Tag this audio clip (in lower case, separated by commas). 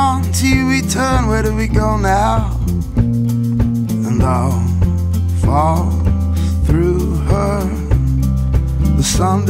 music